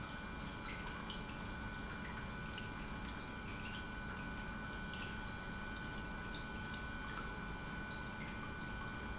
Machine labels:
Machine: pump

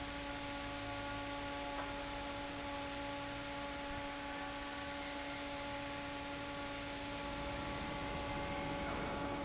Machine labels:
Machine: fan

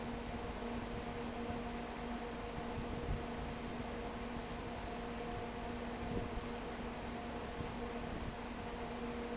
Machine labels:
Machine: fan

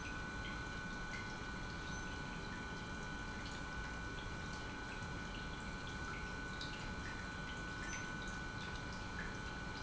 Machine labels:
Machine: pump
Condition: normal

